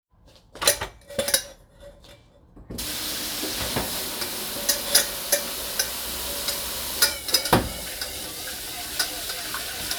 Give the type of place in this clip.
kitchen